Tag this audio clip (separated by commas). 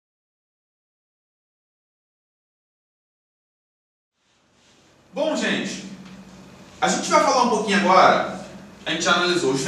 Speech